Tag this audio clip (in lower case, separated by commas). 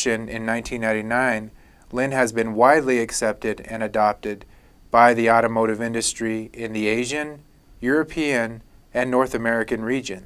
speech